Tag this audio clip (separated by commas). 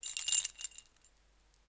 Keys jangling, Rattle, Domestic sounds